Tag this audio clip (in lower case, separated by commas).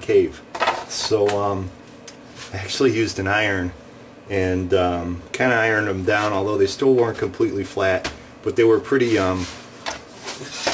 wood, speech, inside a small room